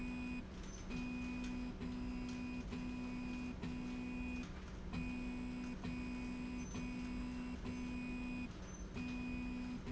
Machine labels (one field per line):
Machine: slide rail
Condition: normal